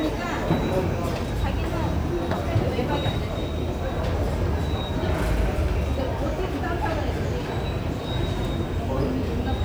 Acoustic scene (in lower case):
subway station